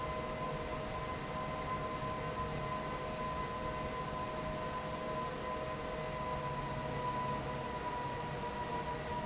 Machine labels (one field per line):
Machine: fan